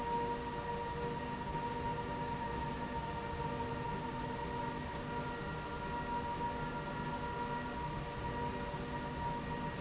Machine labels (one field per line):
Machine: slide rail